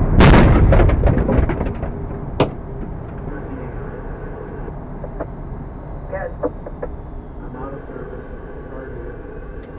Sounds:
car
speech

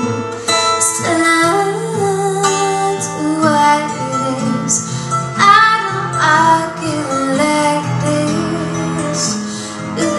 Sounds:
female singing
music

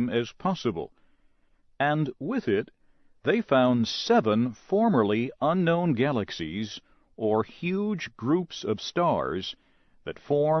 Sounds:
speech

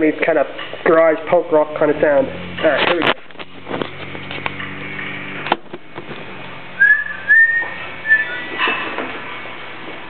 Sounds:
whistling

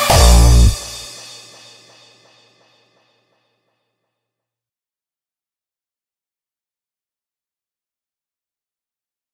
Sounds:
music
electronic music

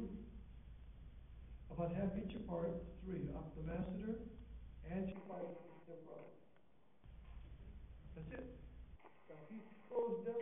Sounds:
speech

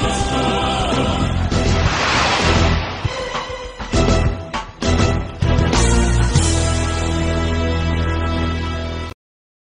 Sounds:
music

